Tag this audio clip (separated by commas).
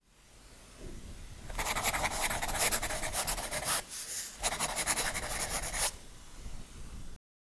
Domestic sounds, Writing